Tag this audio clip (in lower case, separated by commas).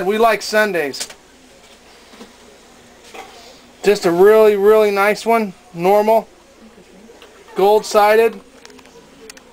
inside a small room, speech